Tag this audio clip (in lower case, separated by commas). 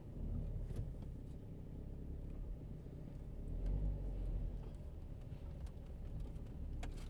engine